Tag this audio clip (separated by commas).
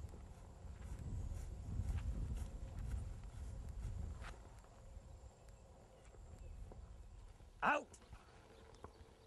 Speech